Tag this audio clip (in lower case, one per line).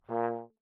musical instrument
music
brass instrument